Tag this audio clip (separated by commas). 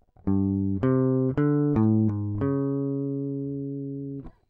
Music, Musical instrument, Guitar, Plucked string instrument